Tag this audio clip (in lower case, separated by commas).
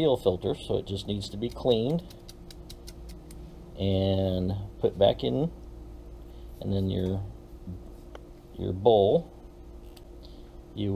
speech